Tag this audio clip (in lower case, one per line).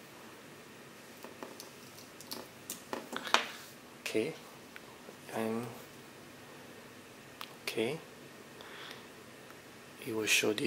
speech